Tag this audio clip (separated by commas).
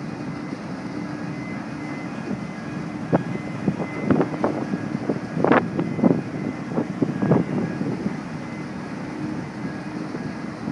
Wind noise (microphone), Water vehicle, Wind, Ship